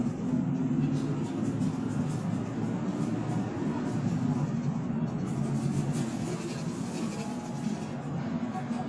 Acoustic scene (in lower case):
bus